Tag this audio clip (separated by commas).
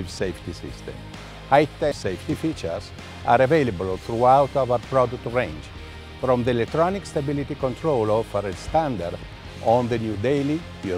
Music, Speech